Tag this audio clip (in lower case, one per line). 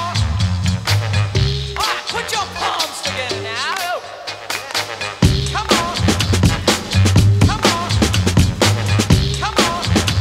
music